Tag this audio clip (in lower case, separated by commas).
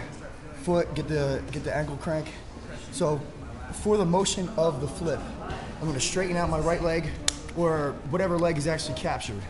speech